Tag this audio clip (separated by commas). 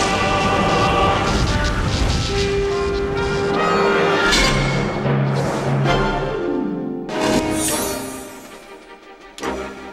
Music